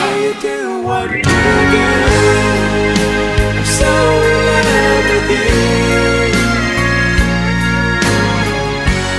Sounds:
christian music

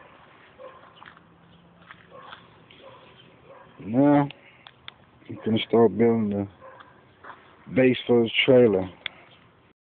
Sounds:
speech

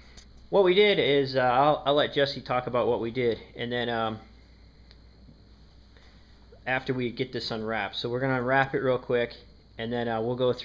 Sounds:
speech

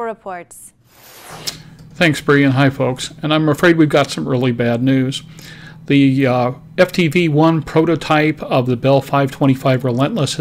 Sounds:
speech

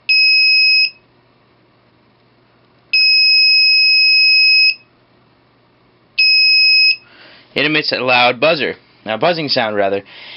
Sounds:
speech, buzzer, smoke detector

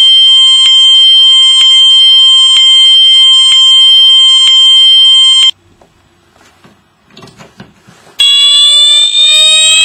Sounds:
fire alarm, inside a small room

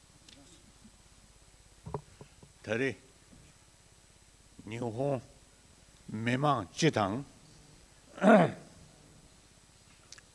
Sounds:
narration, speech, male speech

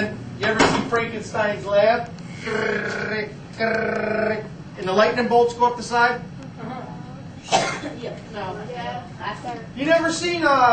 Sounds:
speech

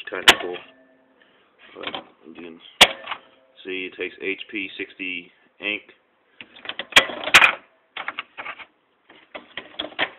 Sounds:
inside a small room, speech

